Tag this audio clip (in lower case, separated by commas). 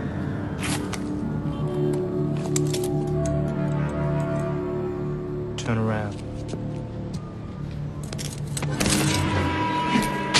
music, speech